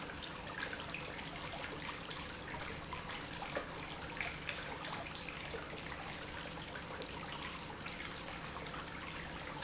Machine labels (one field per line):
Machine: pump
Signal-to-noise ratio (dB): 6 dB